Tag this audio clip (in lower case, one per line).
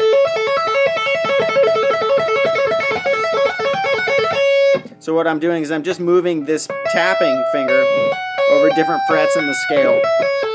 tapping guitar